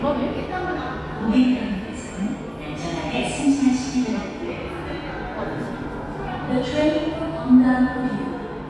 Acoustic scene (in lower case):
subway station